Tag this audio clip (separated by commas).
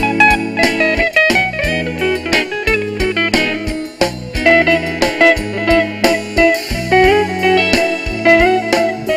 inside a large room or hall, Music